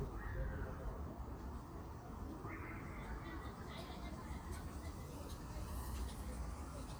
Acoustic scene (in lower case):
park